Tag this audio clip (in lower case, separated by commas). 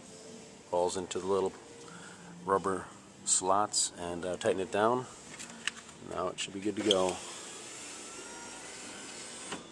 inside a large room or hall, speech